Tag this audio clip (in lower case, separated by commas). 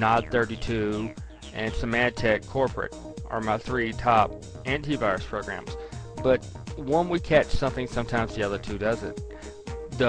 music, speech